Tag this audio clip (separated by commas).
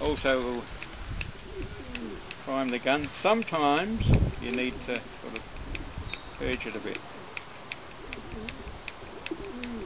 Bird, bird song, Coo, dove